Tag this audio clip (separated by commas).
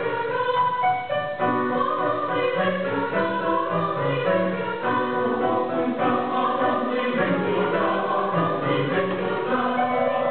Singing, Music, Choir, Opera